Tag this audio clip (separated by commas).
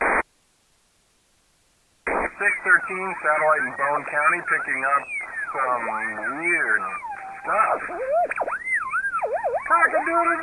police radio chatter